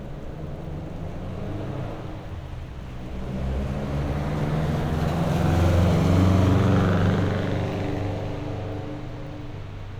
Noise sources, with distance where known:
medium-sounding engine, near

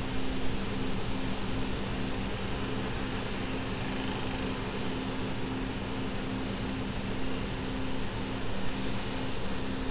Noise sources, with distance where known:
jackhammer, far

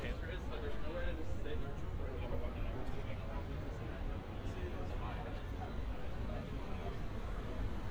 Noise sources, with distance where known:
person or small group talking, near

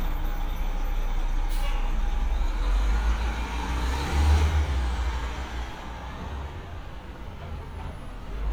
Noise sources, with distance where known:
large-sounding engine, near

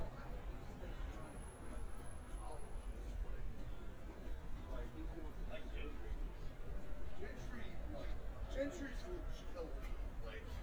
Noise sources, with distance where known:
person or small group talking, near

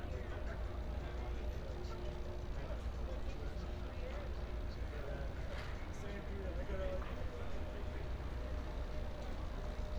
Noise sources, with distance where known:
engine of unclear size, far
person or small group talking

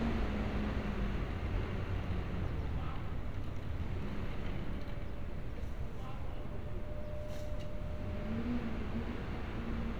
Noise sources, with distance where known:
engine of unclear size

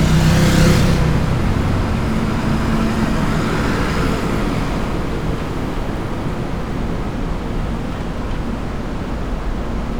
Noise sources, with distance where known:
large-sounding engine, near

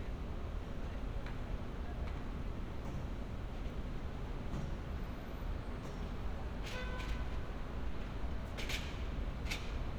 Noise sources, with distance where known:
car horn

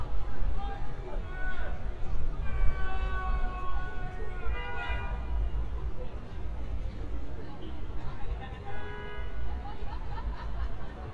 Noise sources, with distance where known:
car horn, near
person or small group talking
person or small group shouting, near

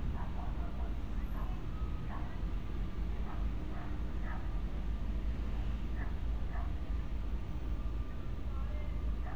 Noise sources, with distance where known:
dog barking or whining, far

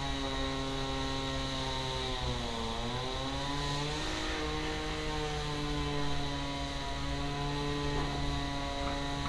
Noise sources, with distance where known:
chainsaw, near

